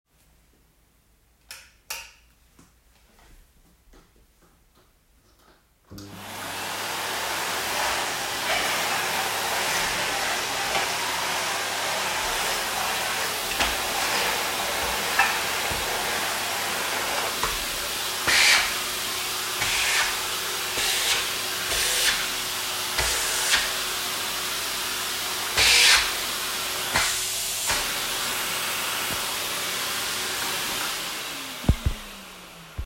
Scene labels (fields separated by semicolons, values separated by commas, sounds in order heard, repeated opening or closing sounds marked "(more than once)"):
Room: living room; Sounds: light switch, vacuum cleaner